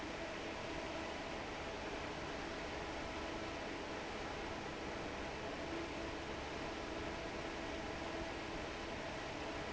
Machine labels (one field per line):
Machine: fan